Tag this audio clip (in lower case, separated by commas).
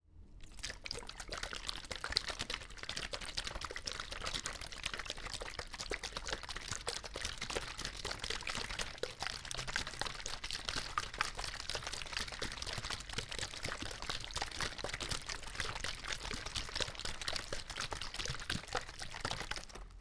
liquid, splash